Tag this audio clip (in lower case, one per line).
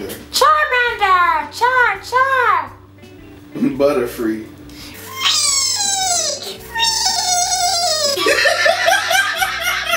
laughter
speech
music